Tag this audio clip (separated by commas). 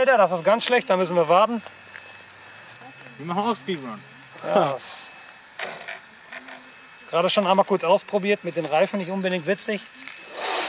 Speech